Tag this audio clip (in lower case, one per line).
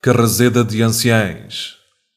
human voice